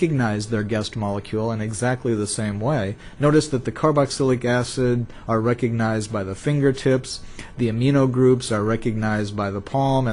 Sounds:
monologue
speech

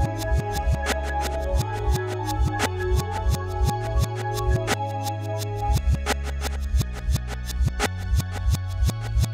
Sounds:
music

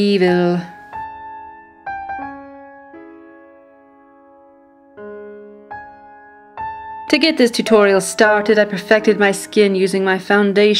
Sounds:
piano

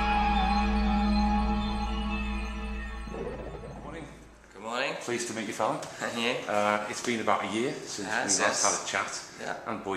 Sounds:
music
inside a small room
speech

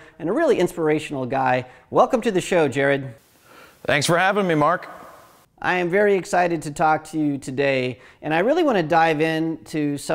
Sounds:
speech

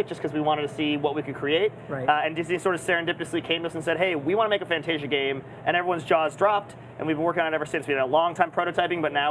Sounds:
speech

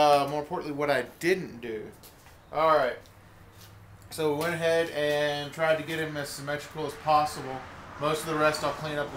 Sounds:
speech

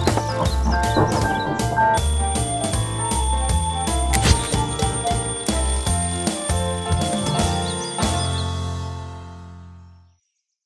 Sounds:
music

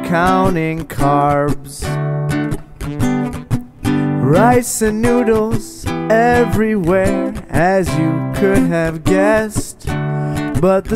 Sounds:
music

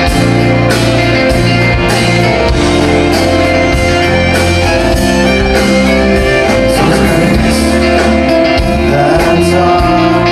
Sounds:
independent music
music

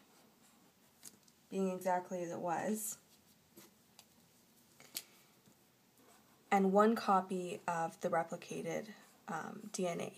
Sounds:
speech
inside a small room

